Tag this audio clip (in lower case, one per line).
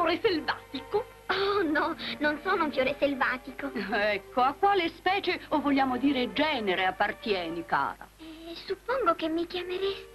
music
speech